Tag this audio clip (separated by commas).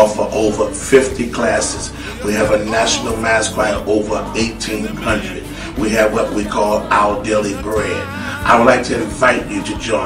Gospel music, Music, Speech